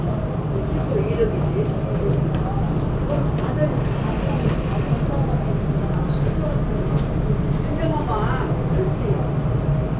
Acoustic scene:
subway train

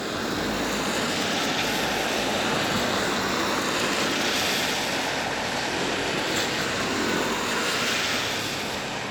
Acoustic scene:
street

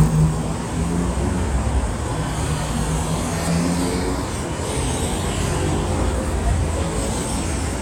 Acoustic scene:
street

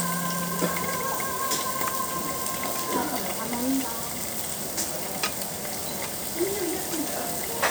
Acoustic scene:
restaurant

